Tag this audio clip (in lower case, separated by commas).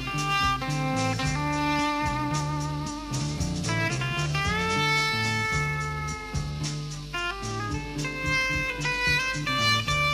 music, inside a large room or hall